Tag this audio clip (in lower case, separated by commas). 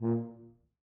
musical instrument, brass instrument, music